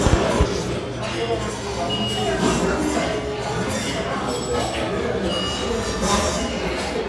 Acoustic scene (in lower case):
restaurant